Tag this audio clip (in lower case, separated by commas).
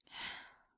sigh, human voice